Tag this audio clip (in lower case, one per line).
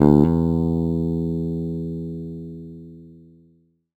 music
plucked string instrument
bass guitar
musical instrument
guitar